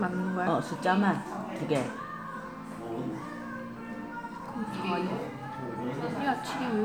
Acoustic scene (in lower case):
crowded indoor space